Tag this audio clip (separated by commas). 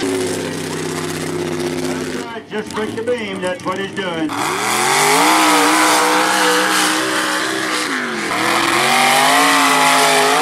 Vehicle, Car, auto racing